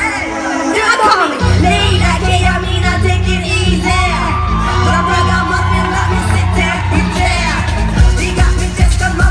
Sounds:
Music

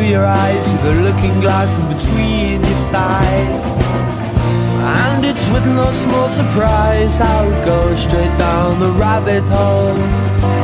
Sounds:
Music

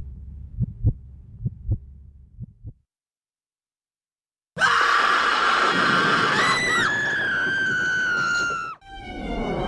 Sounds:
Music, Heart sounds

